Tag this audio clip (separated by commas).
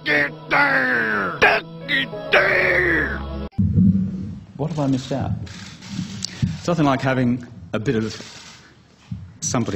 Music, Male speech, monologue, Speech